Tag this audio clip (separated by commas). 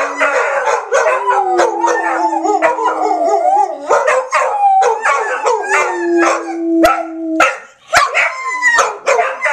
Animal, pets, Yip, canids, Dog, Howl